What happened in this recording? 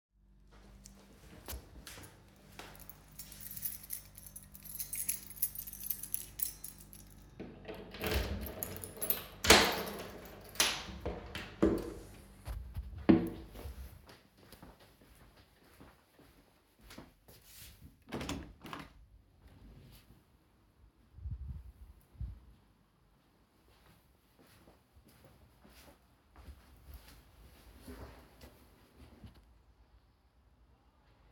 I searched for my key, inserted it into the lock and turned it. Then I opened the door, walked to the window and opened it. Finally I walked to my desk and sat down.